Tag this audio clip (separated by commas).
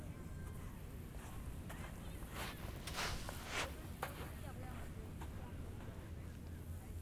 Walk